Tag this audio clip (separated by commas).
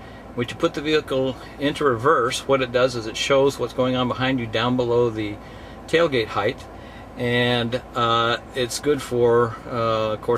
Speech